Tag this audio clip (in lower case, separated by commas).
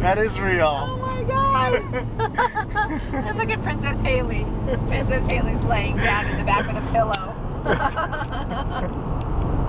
speech, vehicle